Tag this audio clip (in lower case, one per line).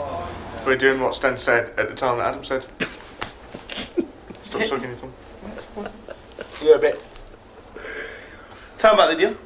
speech